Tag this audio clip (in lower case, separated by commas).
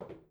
footsteps